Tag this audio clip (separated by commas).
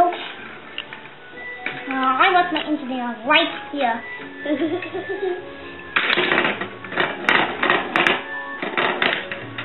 Speech, Music